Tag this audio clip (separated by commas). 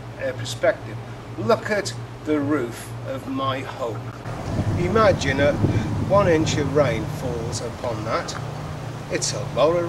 Rain on surface, Speech